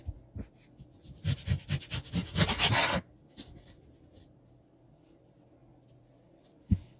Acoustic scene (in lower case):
kitchen